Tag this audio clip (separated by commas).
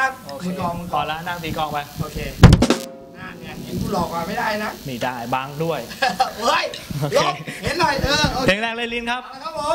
Music, Speech